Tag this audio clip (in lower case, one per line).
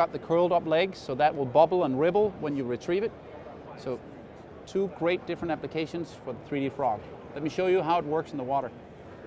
speech